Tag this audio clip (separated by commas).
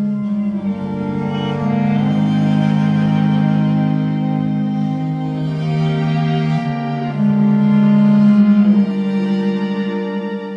Music, fiddle, Musical instrument